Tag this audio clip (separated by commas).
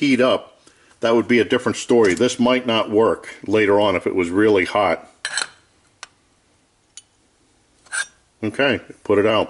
Speech, inside a small room